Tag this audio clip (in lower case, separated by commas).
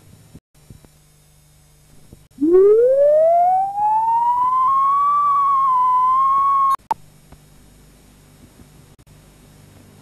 siren